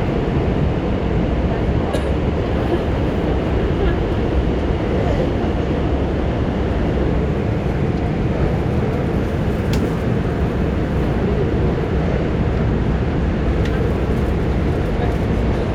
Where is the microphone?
on a subway train